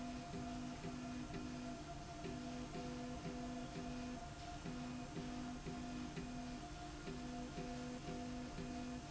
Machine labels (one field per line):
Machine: slide rail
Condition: normal